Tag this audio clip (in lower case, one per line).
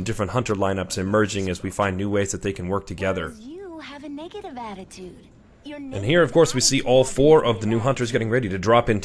speech